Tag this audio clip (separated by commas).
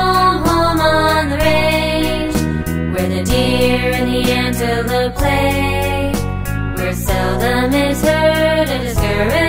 Music for children